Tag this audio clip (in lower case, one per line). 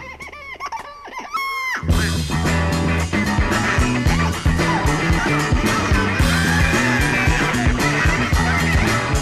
music